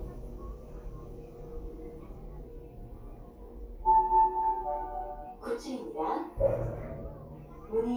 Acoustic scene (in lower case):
elevator